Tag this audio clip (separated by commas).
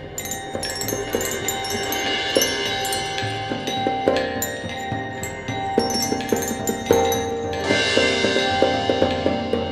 Percussion, Drum